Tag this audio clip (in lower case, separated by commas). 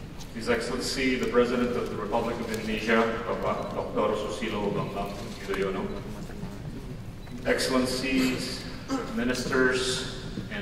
male speech, speech